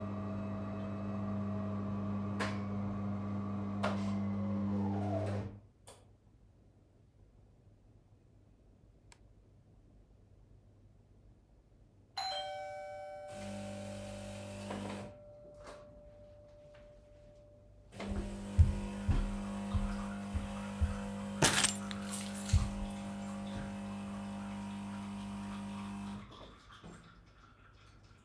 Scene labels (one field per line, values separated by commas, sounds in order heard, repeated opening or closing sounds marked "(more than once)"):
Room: kitchen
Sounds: coffee machine, bell ringing, keys